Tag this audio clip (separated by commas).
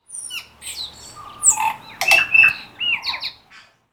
Bird, Animal, Wild animals